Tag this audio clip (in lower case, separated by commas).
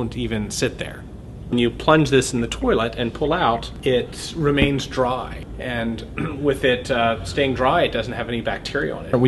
speech